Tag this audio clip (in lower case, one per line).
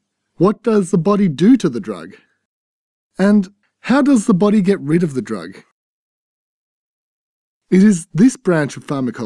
speech synthesizer